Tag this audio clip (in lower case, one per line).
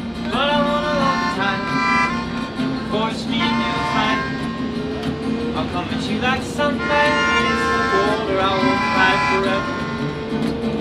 jazz
music